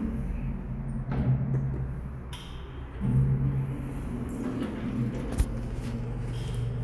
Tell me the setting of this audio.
elevator